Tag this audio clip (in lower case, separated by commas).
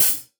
percussion, hi-hat, musical instrument, music, cymbal